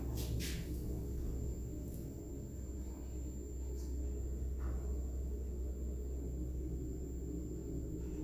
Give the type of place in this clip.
elevator